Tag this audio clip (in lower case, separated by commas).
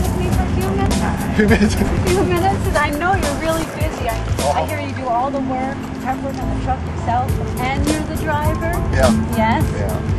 music, speech